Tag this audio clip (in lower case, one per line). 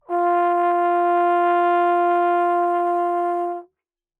music
musical instrument
brass instrument